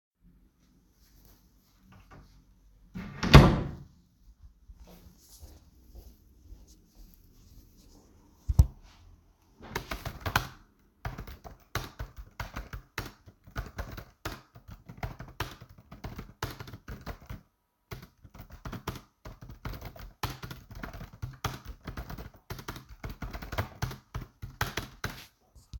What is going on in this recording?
I opened the office door and walked into the room. After entering I turned the light switch on. I walked to the desk and sat down. Then I started typing on the keyboard for a few seconds.